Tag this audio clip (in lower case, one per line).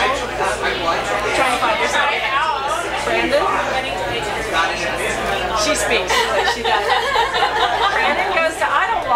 speech